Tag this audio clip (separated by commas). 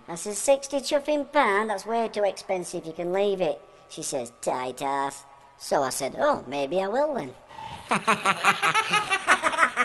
Speech